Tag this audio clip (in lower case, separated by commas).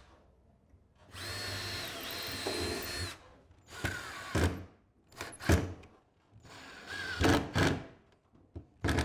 sliding door